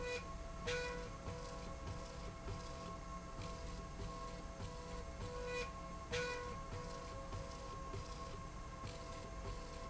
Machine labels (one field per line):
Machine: slide rail